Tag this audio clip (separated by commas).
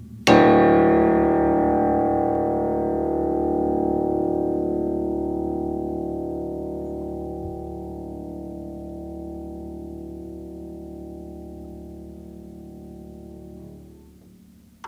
Piano, Music, Keyboard (musical), Musical instrument